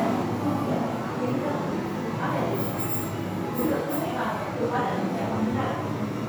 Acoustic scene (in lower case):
crowded indoor space